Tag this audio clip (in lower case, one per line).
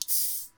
hiss